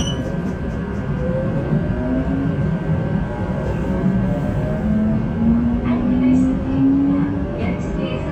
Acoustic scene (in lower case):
subway train